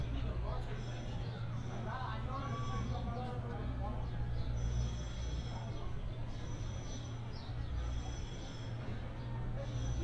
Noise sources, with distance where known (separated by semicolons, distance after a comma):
person or small group talking, far